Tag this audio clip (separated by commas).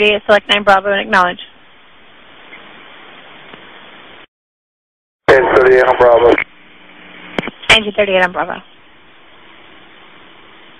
Speech